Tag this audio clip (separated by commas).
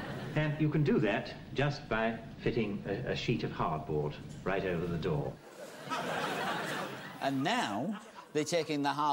Speech